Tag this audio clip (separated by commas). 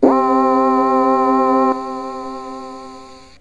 Music, Keyboard (musical), Musical instrument